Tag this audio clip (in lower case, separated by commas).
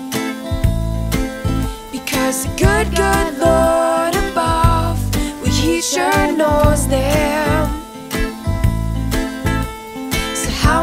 music